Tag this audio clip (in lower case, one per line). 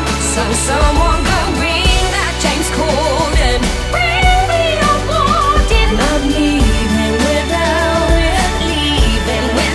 female singing